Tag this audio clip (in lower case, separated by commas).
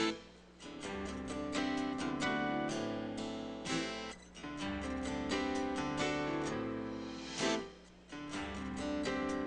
music